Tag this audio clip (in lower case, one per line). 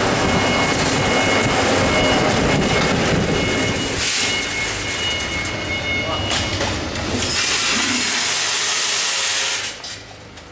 speech